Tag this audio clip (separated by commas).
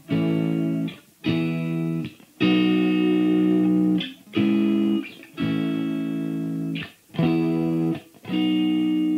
Music, Guitar